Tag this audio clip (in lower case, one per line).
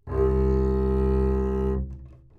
bowed string instrument
musical instrument
music